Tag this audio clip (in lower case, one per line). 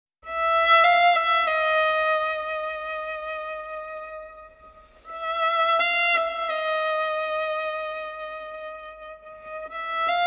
clarinet